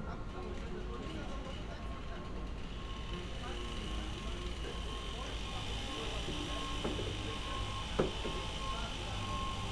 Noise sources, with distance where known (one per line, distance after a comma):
small or medium rotating saw, near
person or small group talking